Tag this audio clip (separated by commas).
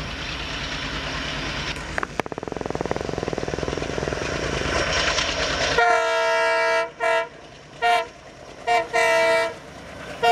train wagon, Train, Vehicle, Rail transport